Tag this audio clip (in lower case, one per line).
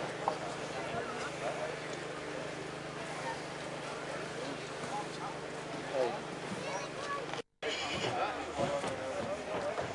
speech